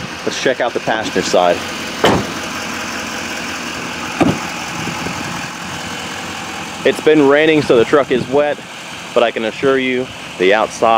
A vehicle engine rumble, small speech with a door clasp-clap